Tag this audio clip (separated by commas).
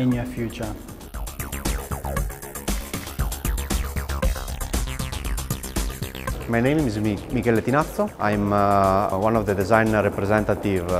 Speech, Music